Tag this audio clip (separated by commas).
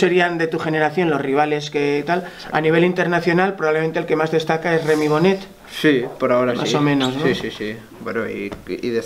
Male speech, Speech, inside a small room